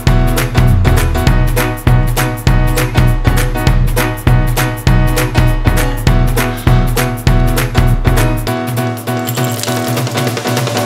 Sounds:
Music

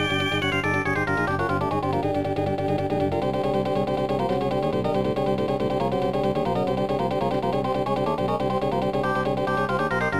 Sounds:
Music

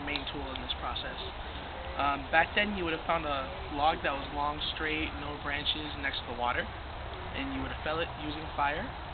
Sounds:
Speech

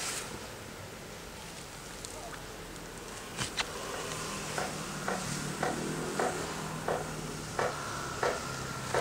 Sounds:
Vehicle

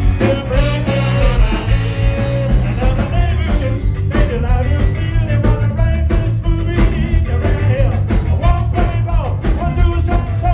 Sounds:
Music

